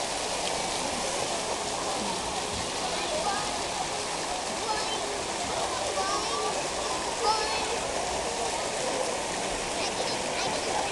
Water pouring, a child speaking